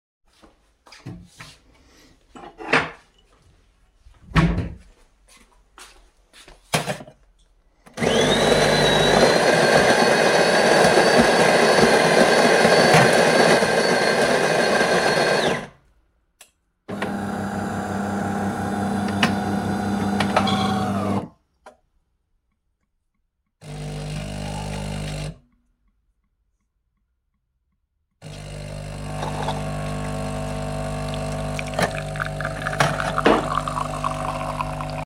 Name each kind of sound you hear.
footsteps, wardrobe or drawer, cutlery and dishes, coffee machine